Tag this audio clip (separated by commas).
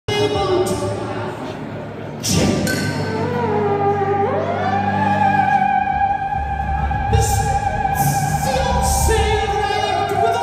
playing theremin